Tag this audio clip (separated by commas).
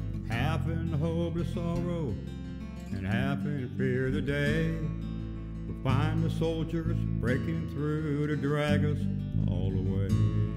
Music